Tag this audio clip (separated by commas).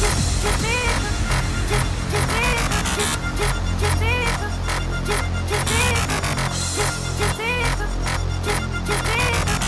Music, Electronic music